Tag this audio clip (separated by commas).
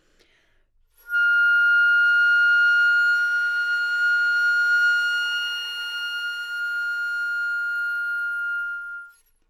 Musical instrument, woodwind instrument, Music